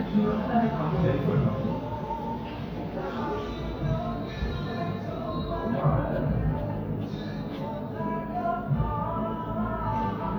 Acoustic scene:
cafe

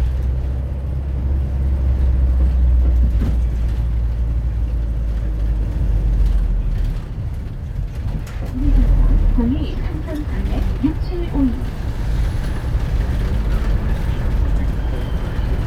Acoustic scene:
bus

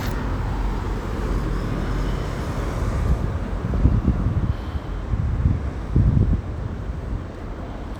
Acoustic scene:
street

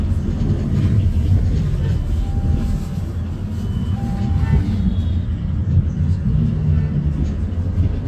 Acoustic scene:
bus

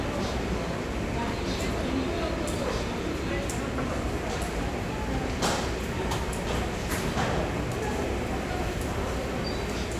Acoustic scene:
crowded indoor space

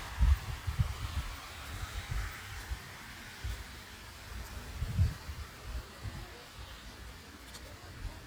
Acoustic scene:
park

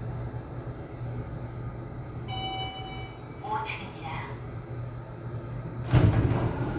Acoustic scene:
elevator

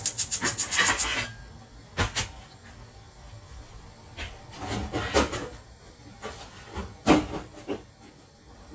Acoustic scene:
kitchen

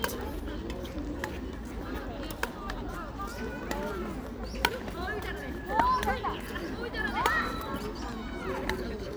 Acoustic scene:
park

